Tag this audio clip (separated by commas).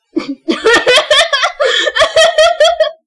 Laughter, Human voice